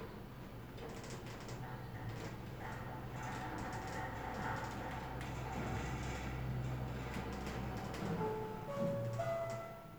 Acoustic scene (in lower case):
elevator